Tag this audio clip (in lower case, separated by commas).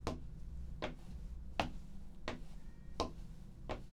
footsteps